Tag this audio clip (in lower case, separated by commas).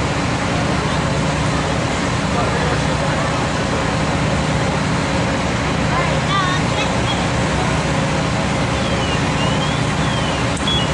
speech